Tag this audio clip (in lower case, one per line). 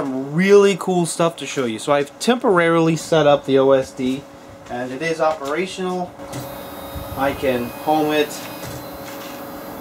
speech
printer